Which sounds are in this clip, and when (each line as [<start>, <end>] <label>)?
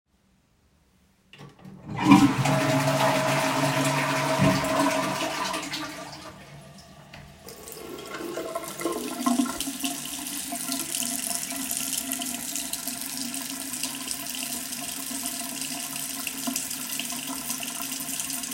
[1.56, 6.73] toilet flushing
[7.46, 18.54] running water